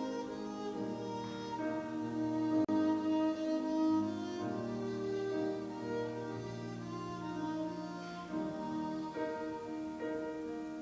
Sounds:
musical instrument, fiddle, music

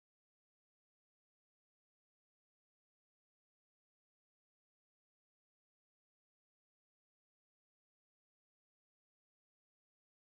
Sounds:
cupboard opening or closing

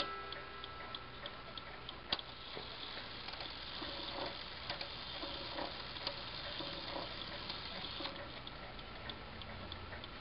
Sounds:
tick-tock, tick

